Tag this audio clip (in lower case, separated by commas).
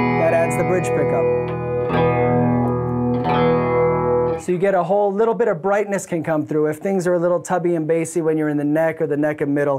plucked string instrument, musical instrument, guitar, music, electric guitar, speech